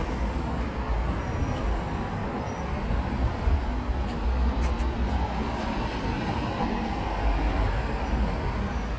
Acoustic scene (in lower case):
street